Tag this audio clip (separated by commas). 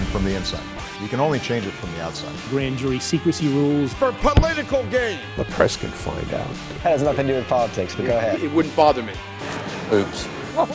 man speaking, Music, Speech